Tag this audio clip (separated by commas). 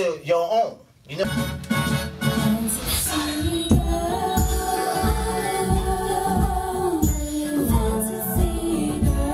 Speech, Music